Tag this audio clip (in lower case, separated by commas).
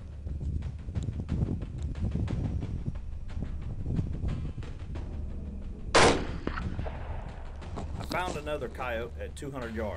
music, speech, gunshot, outside, rural or natural